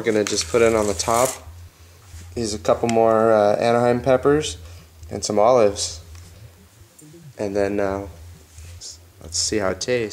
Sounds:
music
speech

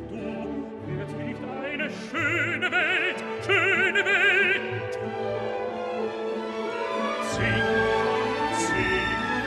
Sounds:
music

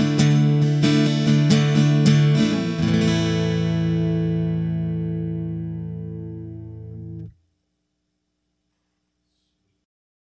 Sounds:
guitar
plucked string instrument
music
musical instrument
acoustic guitar

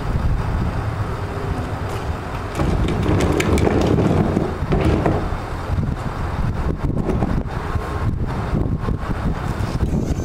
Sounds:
vehicle
outside, urban or man-made
truck

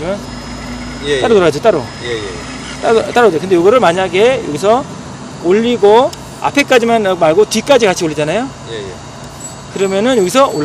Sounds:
speech

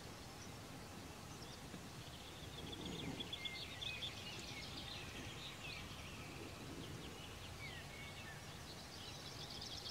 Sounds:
environmental noise
animal

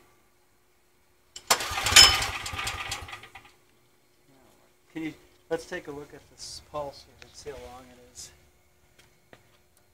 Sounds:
speech
engine
engine starting

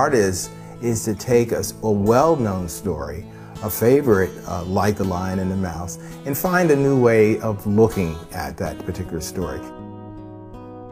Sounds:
music
speech

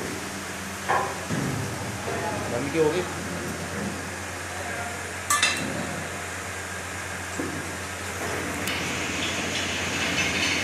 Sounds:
speech

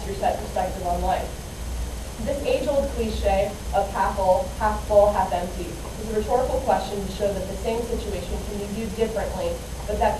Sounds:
speech
monologue
woman speaking

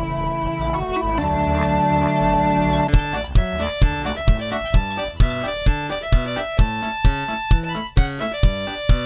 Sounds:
oink
music

